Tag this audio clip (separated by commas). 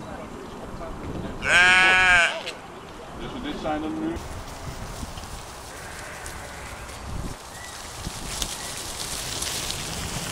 Speech